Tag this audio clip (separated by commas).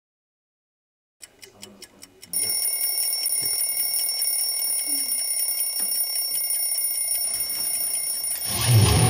Music, Alarm clock